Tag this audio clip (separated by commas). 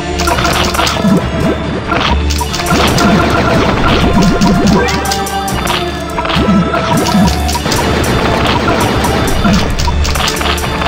Music